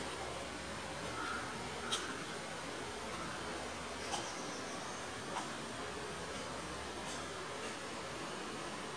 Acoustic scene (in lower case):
park